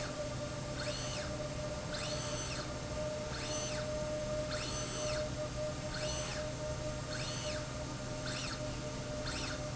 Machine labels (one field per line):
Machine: slide rail